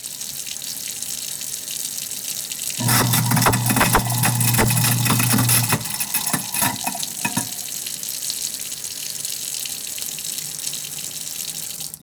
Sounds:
sink (filling or washing), home sounds

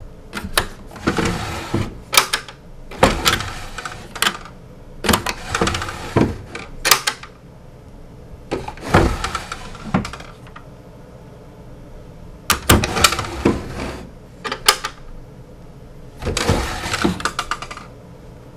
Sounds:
home sounds, drawer open or close

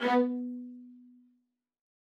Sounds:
musical instrument, bowed string instrument, music

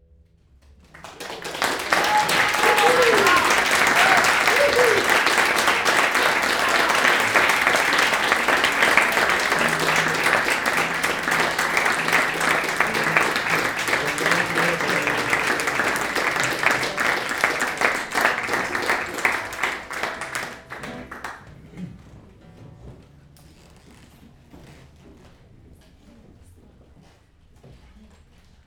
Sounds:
applause, human group actions

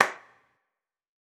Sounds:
hands, clapping

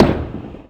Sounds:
tools, hammer

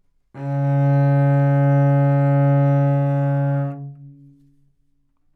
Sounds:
bowed string instrument, musical instrument, music

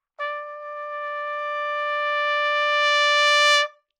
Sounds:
musical instrument, trumpet, music, brass instrument

